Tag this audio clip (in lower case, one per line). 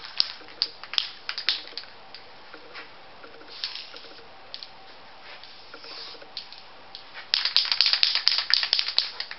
spray